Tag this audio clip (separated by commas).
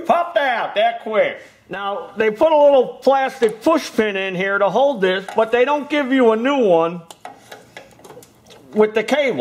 inside a small room, Speech